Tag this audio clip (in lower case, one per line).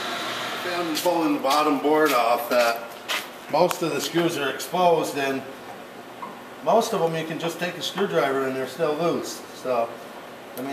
speech